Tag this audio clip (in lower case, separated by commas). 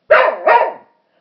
bark, dog, animal, pets